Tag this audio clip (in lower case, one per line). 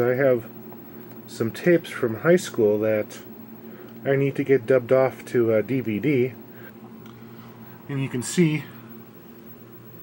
speech